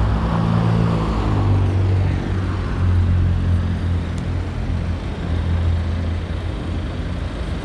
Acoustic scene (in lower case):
street